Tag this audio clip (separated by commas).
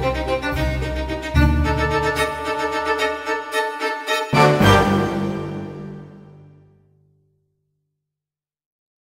Violin, Musical instrument, Music